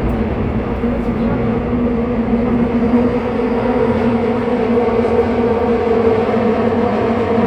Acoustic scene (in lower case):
subway train